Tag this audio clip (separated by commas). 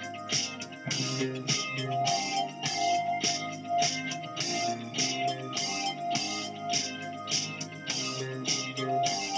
Music